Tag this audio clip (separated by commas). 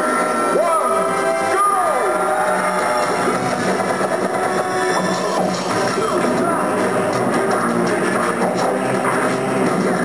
Music, Speech